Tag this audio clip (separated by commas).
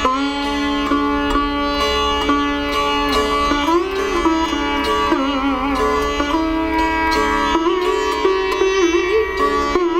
Plucked string instrument, Sitar, Musical instrument, Music